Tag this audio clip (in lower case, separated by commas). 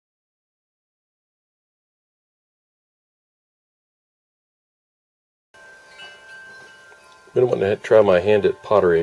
wind chime, chime